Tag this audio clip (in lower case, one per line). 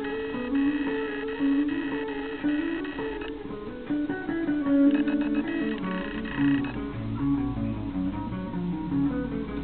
music
musical instrument